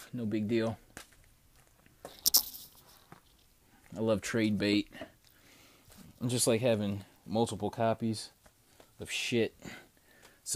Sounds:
inside a small room
speech

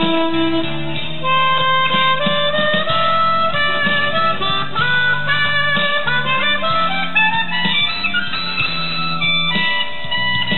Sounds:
harmonica
woodwind instrument

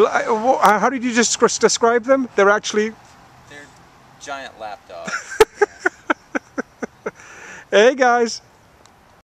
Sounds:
speech

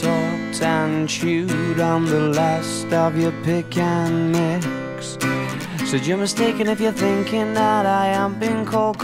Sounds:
music

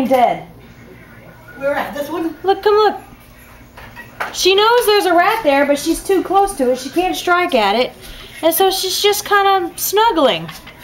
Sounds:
speech

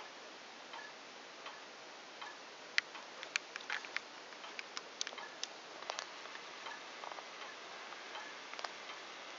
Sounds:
tick-tock

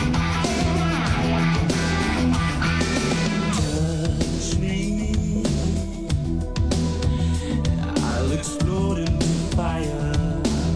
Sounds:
music

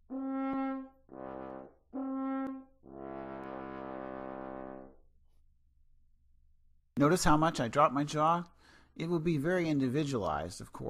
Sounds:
playing french horn

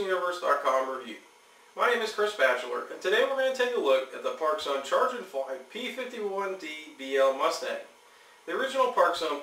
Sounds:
speech

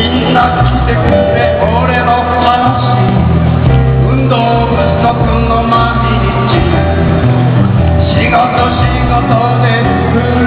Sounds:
male singing
music

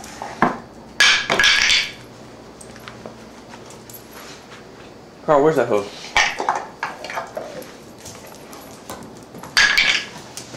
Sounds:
speech

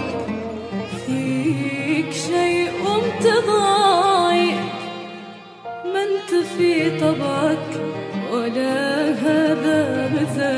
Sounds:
music
music of asia

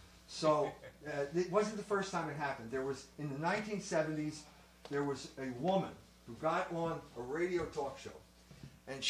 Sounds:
speech

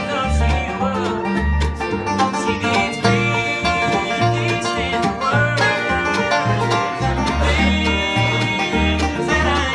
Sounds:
music
bluegrass

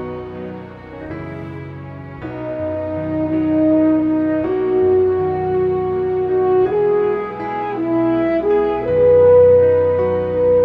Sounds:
playing french horn

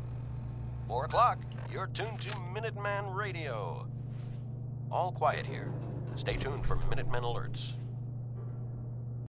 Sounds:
speech

